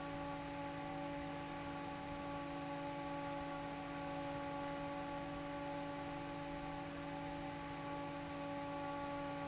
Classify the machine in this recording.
fan